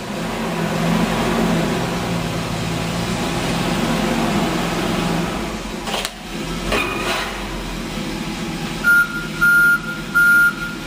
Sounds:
Truck, Vehicle

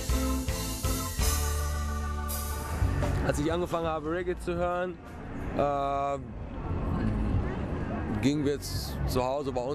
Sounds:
Speech, Music

